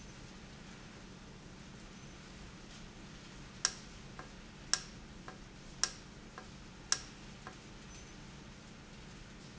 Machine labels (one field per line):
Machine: valve